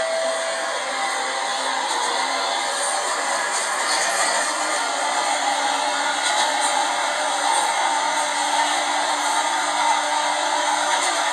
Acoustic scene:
subway train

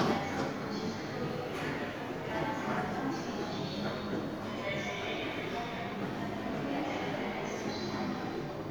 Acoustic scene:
subway station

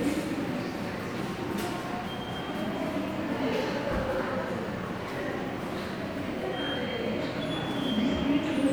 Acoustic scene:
subway station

